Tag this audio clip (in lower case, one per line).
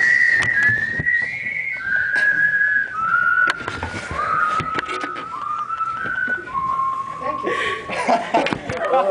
speech
whistling